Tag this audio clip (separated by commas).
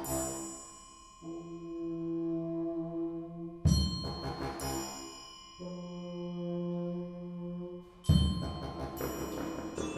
Musical instrument, Music, Percussion